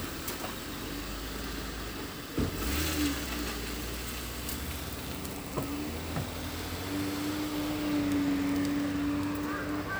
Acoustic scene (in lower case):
street